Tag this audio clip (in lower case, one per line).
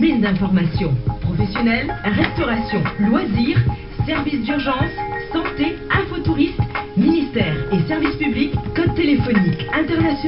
music
speech
radio